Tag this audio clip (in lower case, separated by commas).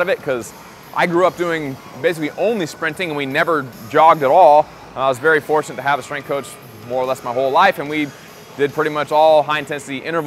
inside a large room or hall, speech, music